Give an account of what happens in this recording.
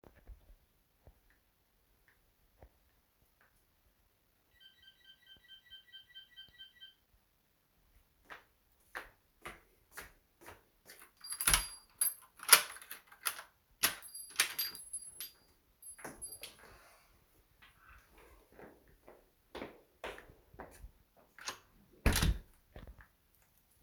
I am sitting on the couch with phone in hands. You can hear some sounds stemming from touch feedback as well as some sound of fabric as the phone might have touched something. Then a door bell is heard, so I come towards the entrance door. Next, I grab the keys in the door, open the door and let the other person in. Finally, I close the door shut.